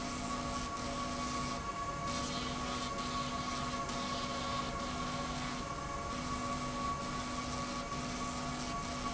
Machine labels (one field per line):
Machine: slide rail